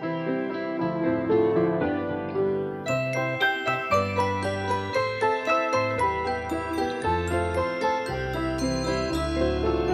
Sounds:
Jingle

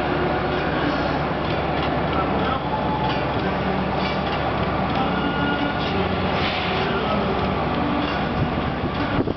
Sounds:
Vehicle

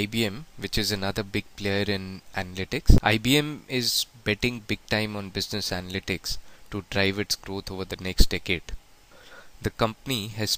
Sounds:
Speech

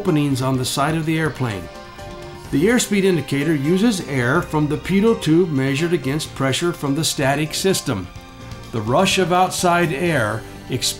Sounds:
Music, Speech

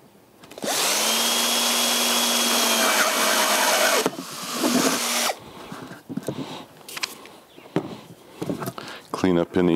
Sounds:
Speech

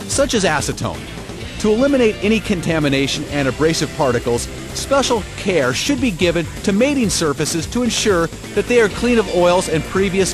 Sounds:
Music, Speech

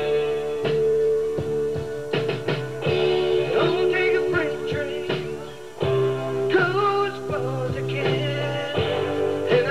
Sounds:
Music

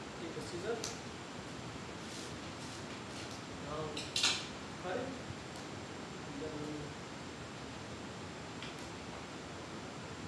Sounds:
Speech

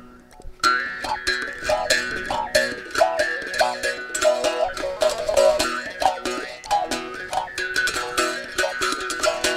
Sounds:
Musical instrument, Music, Bowed string instrument

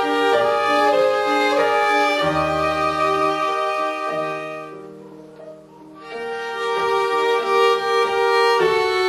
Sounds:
Music, Violin, Musical instrument

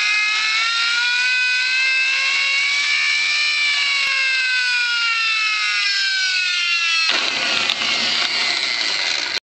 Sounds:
Fire engine

